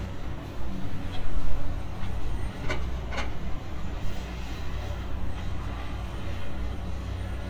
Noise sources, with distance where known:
large-sounding engine

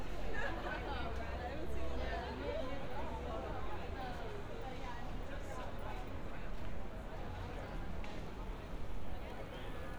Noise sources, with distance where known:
person or small group talking

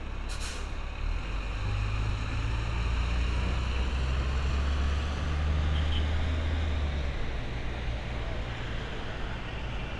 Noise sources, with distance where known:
engine of unclear size, near

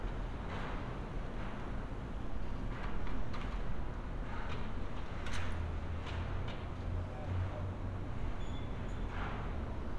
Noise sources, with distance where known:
non-machinery impact

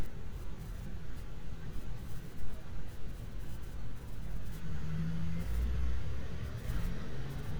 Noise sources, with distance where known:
large-sounding engine, far

